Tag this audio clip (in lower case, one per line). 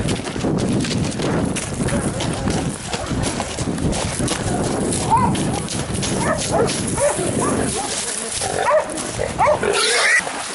dog baying